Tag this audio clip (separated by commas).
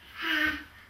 Speech, Human voice